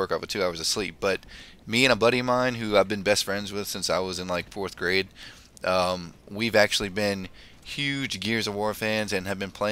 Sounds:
Speech

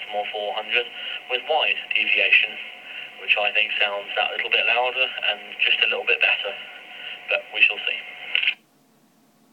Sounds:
inside a small room, Radio, Speech

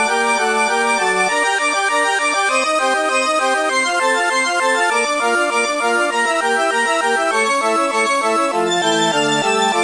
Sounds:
Music

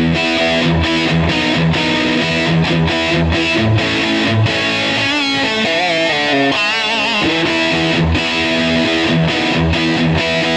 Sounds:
Music, Musical instrument, Guitar

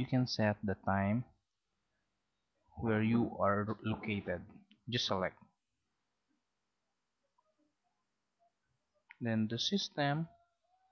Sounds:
Speech

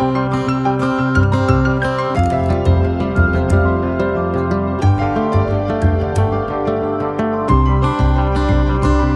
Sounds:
Music

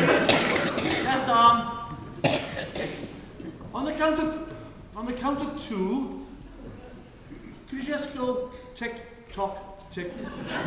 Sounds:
Speech

